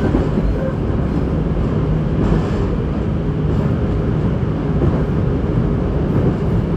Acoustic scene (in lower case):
subway train